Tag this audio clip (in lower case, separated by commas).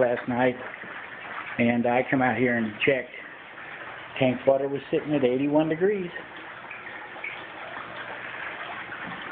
speech